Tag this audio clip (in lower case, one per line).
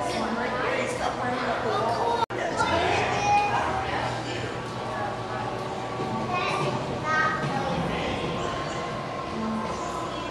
inside a large room or hall
speech